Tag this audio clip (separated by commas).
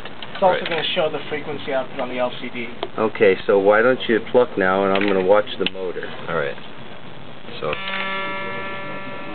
Speech